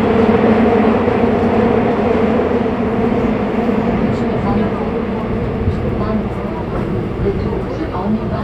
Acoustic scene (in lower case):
subway train